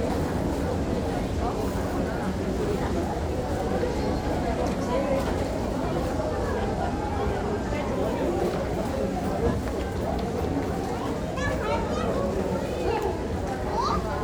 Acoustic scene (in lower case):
crowded indoor space